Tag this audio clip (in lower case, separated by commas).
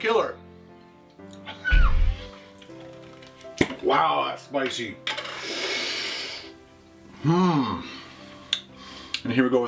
music, speech